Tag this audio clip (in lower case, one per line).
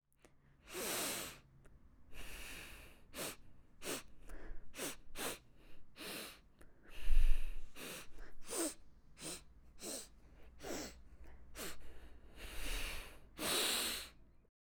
respiratory sounds
breathing